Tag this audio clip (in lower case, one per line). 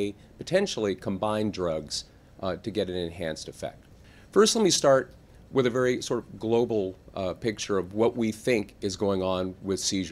speech